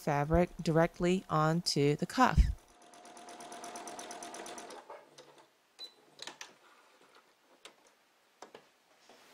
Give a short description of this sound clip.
Female speaking and sewing machine running followed by a beep